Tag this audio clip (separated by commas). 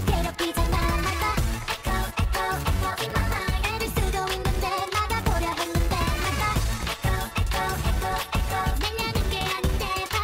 Music, Echo